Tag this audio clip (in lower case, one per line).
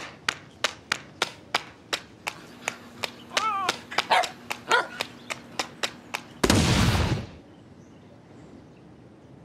growling
inside a small room